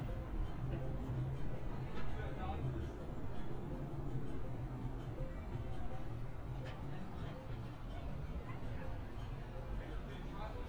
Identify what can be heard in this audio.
unidentified human voice